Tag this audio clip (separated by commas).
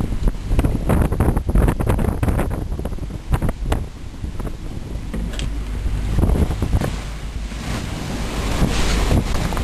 sailing, Sailboat